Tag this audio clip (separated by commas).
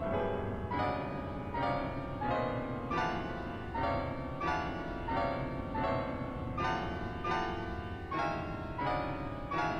Music